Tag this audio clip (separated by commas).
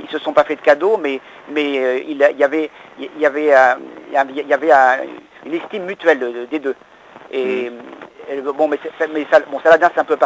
Radio, Speech